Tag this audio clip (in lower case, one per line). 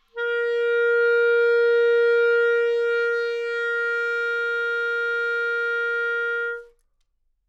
music
woodwind instrument
musical instrument